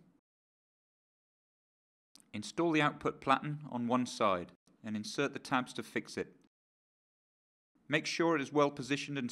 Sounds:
speech

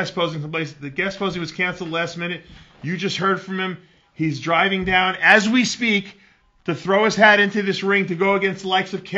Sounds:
speech

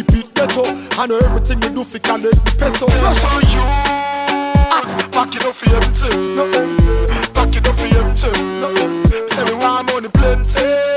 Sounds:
hip hop music, music, reggae

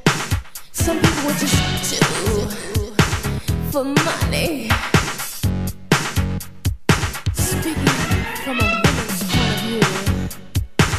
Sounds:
sound effect, music

